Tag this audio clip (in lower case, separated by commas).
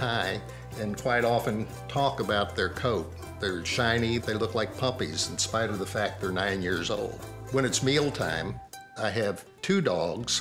speech, music